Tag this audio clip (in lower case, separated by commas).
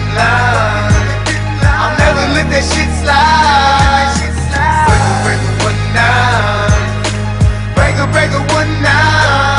music